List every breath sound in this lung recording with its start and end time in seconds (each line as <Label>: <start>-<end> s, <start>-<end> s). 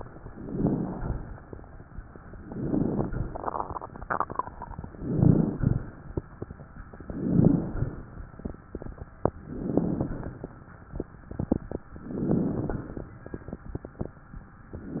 Inhalation: 0.30-0.95 s, 2.47-3.07 s, 4.90-5.60 s, 7.04-7.74 s, 9.39-10.09 s, 11.96-12.75 s
Exhalation: 0.95-1.56 s, 3.07-3.51 s, 5.56-6.00 s, 7.76-8.20 s, 10.11-10.55 s, 12.75-13.19 s
Crackles: 0.30-0.95 s, 2.45-3.04 s, 4.90-5.60 s, 7.04-7.74 s, 9.39-10.09 s